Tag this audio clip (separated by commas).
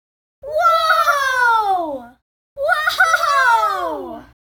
Human voice, Shout, Human group actions